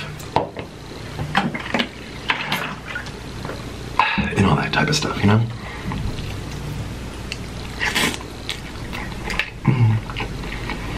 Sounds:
people eating noodle

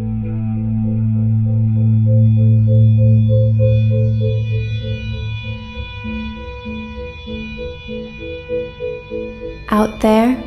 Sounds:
speech
music
inside a small room

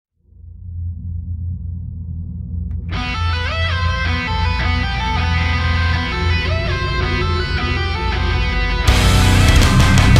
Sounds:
music
inside a small room

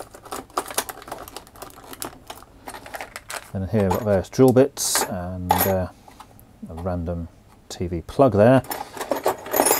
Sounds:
speech
inside a small room

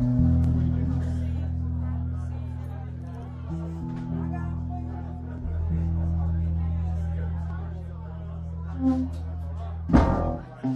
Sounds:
speech
music
musical instrument

